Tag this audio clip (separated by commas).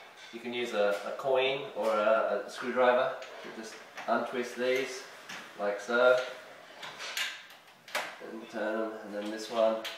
Speech